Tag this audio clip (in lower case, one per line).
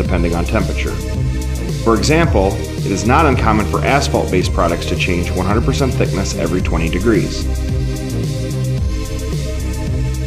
music
speech